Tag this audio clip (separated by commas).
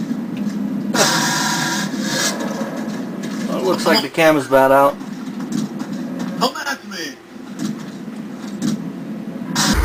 Speech